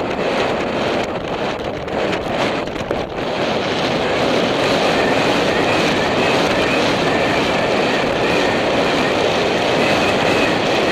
Harsh wind with feint horse clip-clopping in background